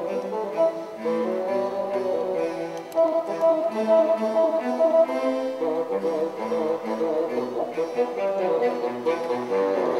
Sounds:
playing bassoon

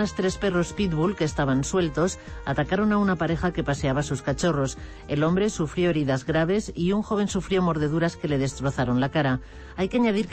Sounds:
Music, Speech

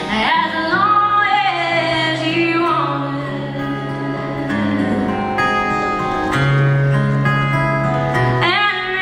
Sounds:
Music, Female singing, Singing, Country

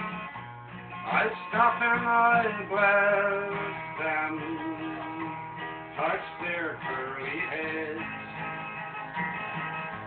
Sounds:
Music, Folk music

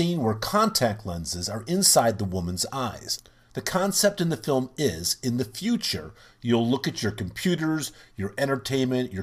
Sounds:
Speech

